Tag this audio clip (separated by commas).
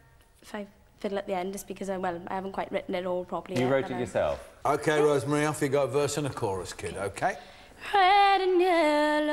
Speech